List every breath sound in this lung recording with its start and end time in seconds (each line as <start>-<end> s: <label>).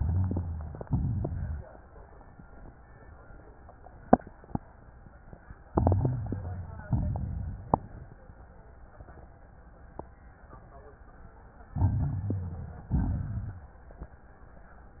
0.00-0.76 s: inhalation
0.00-0.76 s: rhonchi
0.81-1.58 s: exhalation
0.81-1.58 s: crackles
5.69-6.85 s: inhalation
5.69-6.85 s: crackles
6.87-8.03 s: exhalation
6.87-8.03 s: crackles
11.67-12.83 s: inhalation
11.67-12.83 s: crackles
12.92-13.78 s: exhalation
12.92-13.78 s: crackles